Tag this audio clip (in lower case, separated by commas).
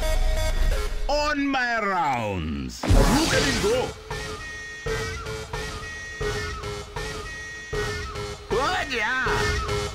music, sound effect, speech